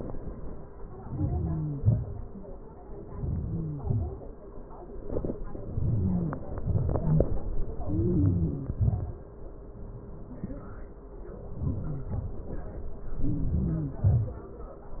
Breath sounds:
1.06-1.63 s: inhalation
1.86-2.27 s: exhalation
3.12-3.73 s: inhalation
3.80-4.29 s: exhalation
5.78-6.37 s: inhalation
6.62-7.08 s: exhalation
7.91-8.72 s: inhalation
8.82-9.27 s: exhalation
11.69-12.09 s: inhalation
12.09-12.32 s: exhalation
13.30-13.93 s: inhalation
14.08-14.37 s: exhalation

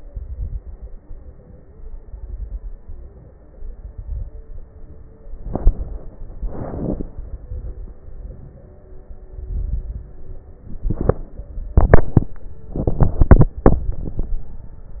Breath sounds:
0.00-0.98 s: exhalation
0.00-0.98 s: crackles
1.01-1.99 s: inhalation
2.03-3.02 s: exhalation
2.03-3.02 s: crackles
3.02-3.57 s: inhalation
3.63-4.62 s: exhalation
3.63-4.62 s: crackles
4.71-5.41 s: inhalation
5.40-6.10 s: exhalation
5.40-6.10 s: crackles
7.20-8.00 s: exhalation
7.20-8.00 s: crackles
8.06-9.01 s: inhalation
9.18-10.13 s: exhalation
9.18-10.13 s: crackles

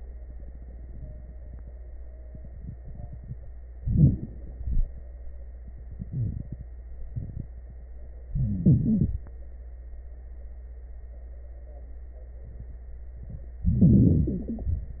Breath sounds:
3.74-4.49 s: inhalation
3.74-4.49 s: crackles
4.53-5.13 s: exhalation
4.53-5.13 s: crackles
8.30-9.25 s: inhalation
8.30-9.25 s: crackles
13.60-14.99 s: inhalation
13.60-14.99 s: crackles

